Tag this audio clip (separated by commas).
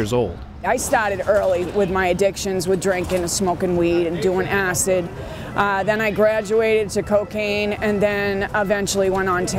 Speech, outside, urban or man-made